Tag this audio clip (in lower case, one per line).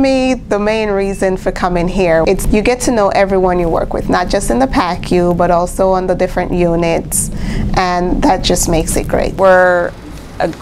inside a small room
speech